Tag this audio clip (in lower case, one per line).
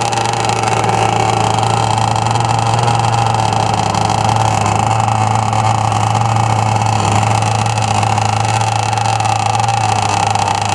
motorboat